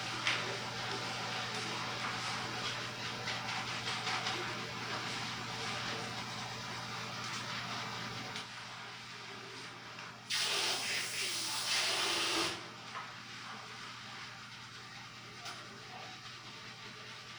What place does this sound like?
restroom